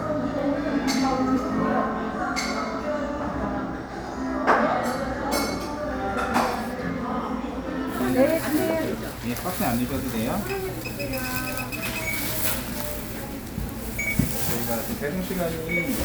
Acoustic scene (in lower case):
crowded indoor space